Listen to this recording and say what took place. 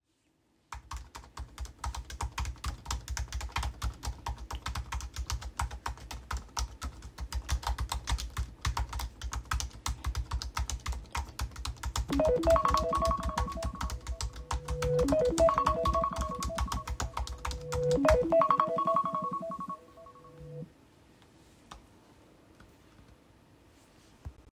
I was typing on my keyboard , then my phone alarm rang